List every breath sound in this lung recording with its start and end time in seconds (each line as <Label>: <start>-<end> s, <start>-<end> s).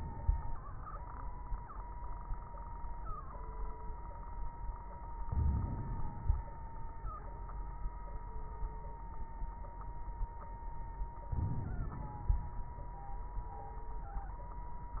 Inhalation: 5.25-6.46 s, 11.30-12.51 s
Crackles: 5.25-6.46 s, 11.30-12.51 s